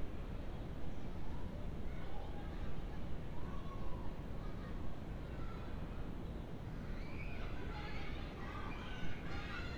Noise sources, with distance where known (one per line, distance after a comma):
unidentified human voice, far